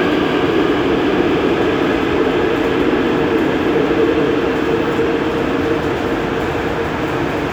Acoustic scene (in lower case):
subway station